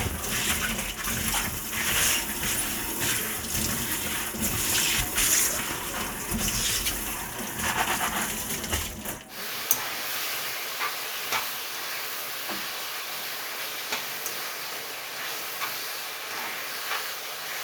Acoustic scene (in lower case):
kitchen